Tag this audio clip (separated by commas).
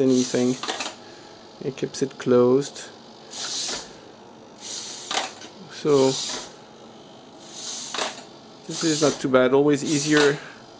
Speech, inside a small room